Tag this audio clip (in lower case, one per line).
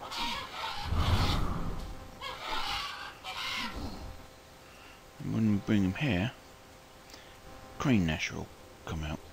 speech